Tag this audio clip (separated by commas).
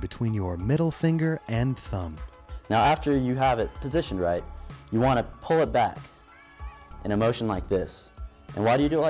Speech, Music, inside a small room